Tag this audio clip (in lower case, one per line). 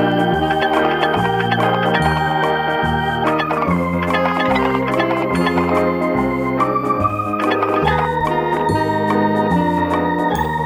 music